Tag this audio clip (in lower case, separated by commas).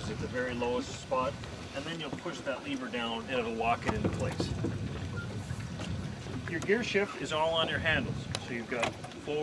speech